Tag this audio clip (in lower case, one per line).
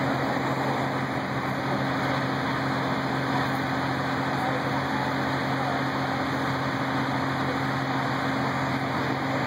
motor vehicle (road)
vehicle